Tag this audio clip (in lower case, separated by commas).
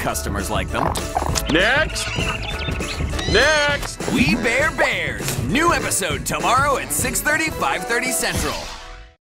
music, speech